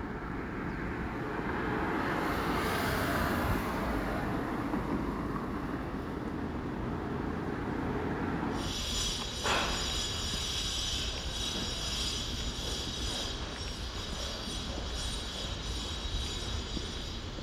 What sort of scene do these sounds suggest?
residential area